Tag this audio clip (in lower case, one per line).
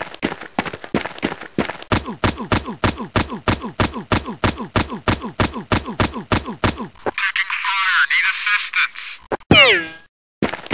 speech